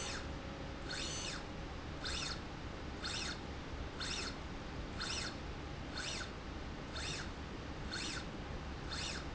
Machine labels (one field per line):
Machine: slide rail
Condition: normal